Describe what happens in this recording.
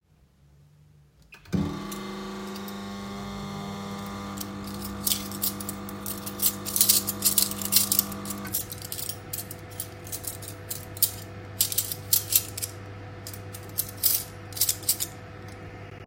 I started the microwave and left it running. While waiting I began sorting and arranging cutlery on the counter producing clattering sounds throughout.